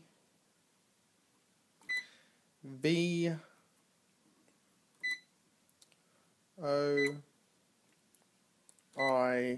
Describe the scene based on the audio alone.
Beeps sound and an adult male speaks